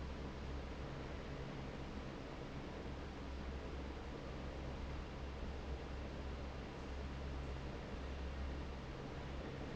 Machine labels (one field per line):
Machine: fan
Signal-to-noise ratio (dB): 6 dB